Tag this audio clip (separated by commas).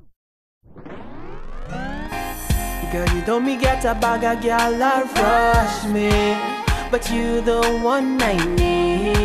Exciting music, Music